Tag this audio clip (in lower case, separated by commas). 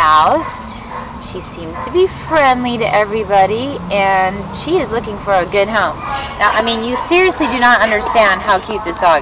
speech